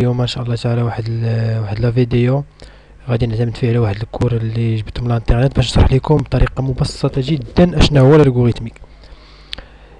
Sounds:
Speech

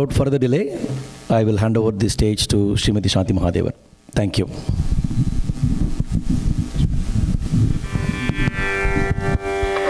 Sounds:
Speech, Music

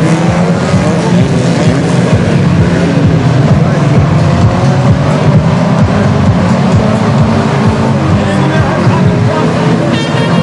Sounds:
Music, Car passing by, Car, Speech

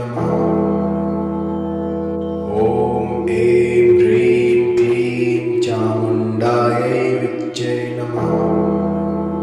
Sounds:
Speech, Mantra, Music

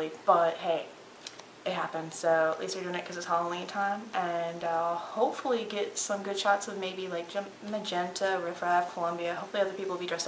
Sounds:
Speech, inside a small room

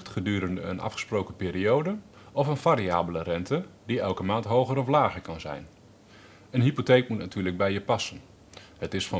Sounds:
Speech

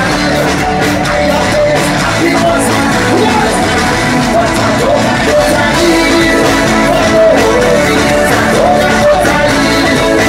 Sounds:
Crowd, Music

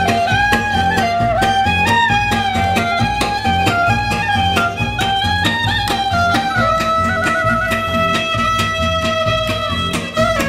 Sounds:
Guitar, Traditional music, Plucked string instrument, Musical instrument, Double bass, Music, Violin

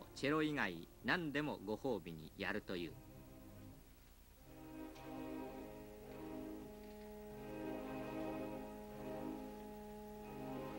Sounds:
Music

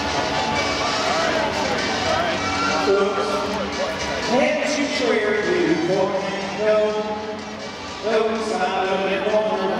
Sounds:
Music, Speech

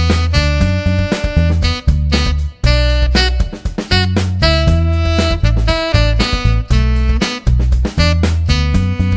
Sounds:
Music

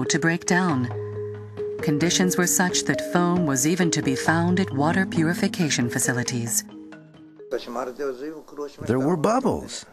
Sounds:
Speech, Music

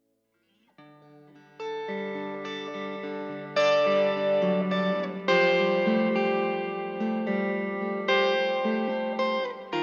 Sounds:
Music, Guitar, Acoustic guitar, Musical instrument

